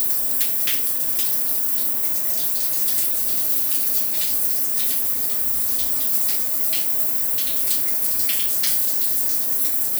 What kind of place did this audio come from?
restroom